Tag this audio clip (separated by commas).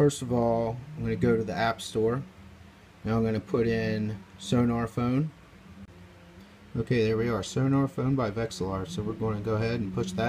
Speech